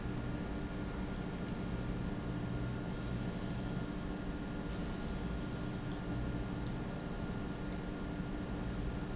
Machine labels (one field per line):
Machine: pump